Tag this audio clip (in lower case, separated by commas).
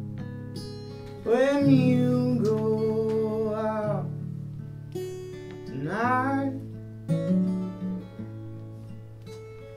music